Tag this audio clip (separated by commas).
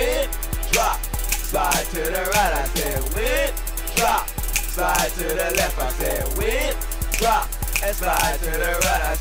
Music